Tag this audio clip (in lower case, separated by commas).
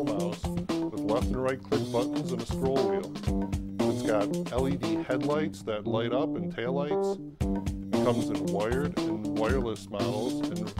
speech, music